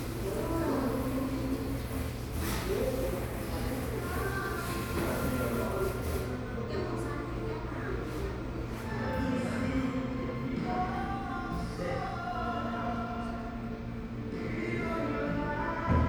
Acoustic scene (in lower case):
cafe